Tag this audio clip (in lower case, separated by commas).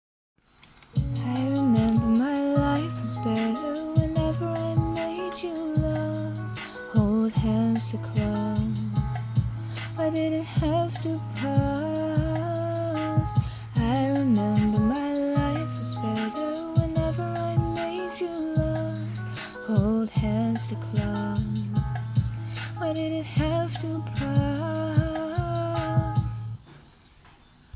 female singing, human voice, singing